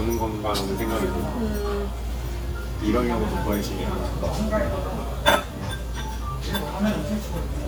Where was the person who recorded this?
in a restaurant